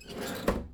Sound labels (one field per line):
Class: drawer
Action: closing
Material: wooden